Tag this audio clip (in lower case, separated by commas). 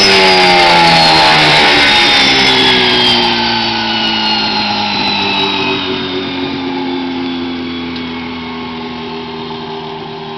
engine, medium engine (mid frequency), vehicle